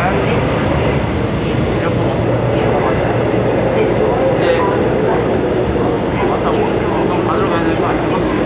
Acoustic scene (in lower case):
subway train